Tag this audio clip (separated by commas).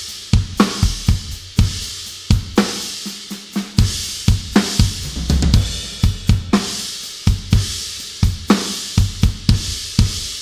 playing cymbal